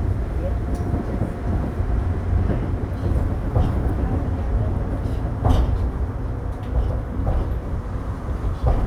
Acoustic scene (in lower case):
subway train